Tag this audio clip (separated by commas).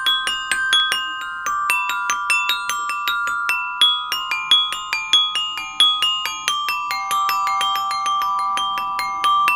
playing glockenspiel